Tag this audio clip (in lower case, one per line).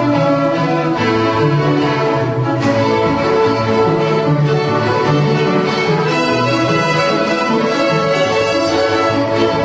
string section